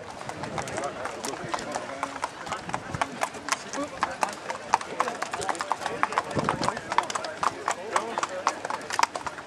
A horse is trotting. People are speaking